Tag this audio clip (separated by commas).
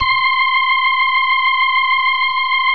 Music, Organ, Musical instrument, Keyboard (musical)